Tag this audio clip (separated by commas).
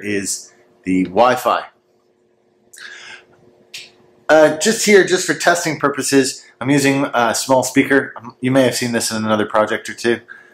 Speech